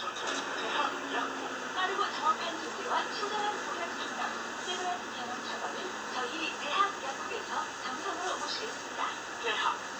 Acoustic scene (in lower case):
bus